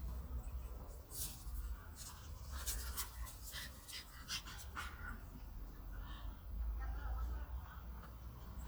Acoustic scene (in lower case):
park